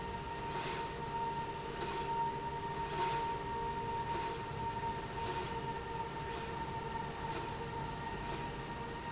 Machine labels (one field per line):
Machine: slide rail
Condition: normal